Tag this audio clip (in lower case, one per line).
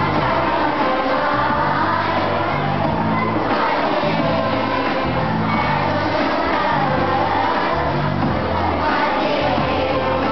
child singing
choir
music